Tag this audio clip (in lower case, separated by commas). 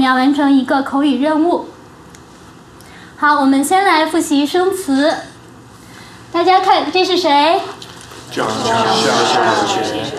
speech